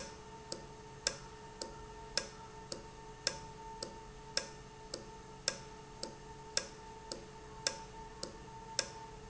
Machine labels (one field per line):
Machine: valve